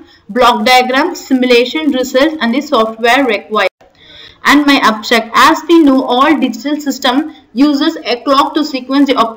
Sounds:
speech

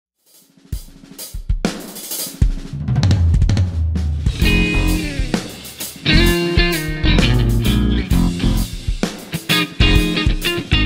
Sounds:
cymbal
snare drum
musical instrument
bass drum
guitar
drum
plucked string instrument
music
drum kit
hi-hat
drum roll

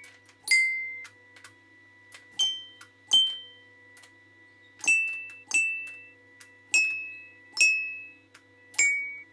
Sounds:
playing glockenspiel

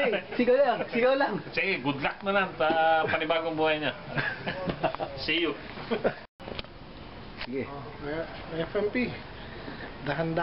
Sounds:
speech

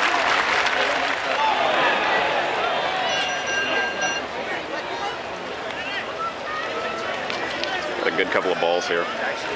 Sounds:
speech

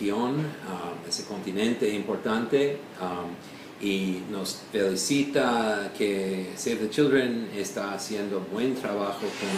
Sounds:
speech

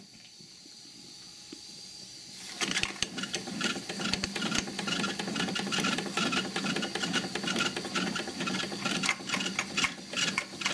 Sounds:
engine

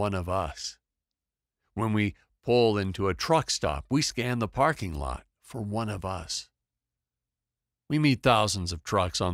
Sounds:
speech

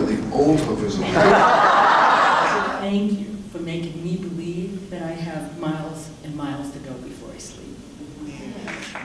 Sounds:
man speaking

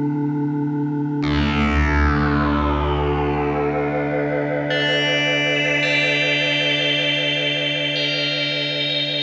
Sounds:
music

